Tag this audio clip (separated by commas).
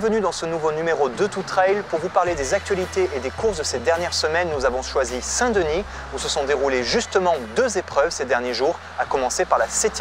Music, Speech, outside, urban or man-made